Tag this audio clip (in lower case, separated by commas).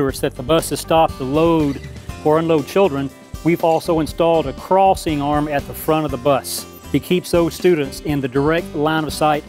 speech, music